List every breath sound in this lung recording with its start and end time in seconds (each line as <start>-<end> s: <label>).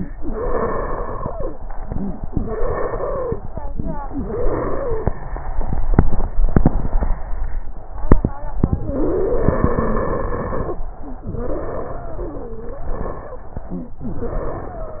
0.11-1.46 s: exhalation
0.11-1.46 s: wheeze
1.56-2.28 s: inhalation
1.56-2.28 s: wheeze
2.34-3.46 s: exhalation
2.34-3.46 s: wheeze
3.46-4.08 s: inhalation
3.46-4.08 s: crackles
4.08-5.20 s: exhalation
4.08-5.20 s: wheeze
8.91-10.83 s: exhalation
8.91-10.83 s: wheeze
11.25-13.98 s: exhalation
11.25-13.98 s: wheeze
14.04-15.00 s: inhalation
14.04-15.00 s: wheeze